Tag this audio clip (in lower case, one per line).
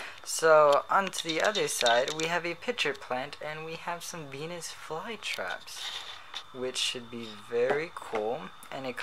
speech